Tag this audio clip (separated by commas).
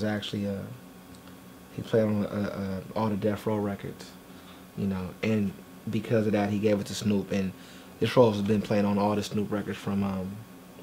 Speech